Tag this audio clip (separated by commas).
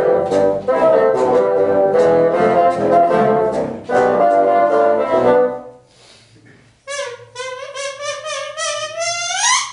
playing bassoon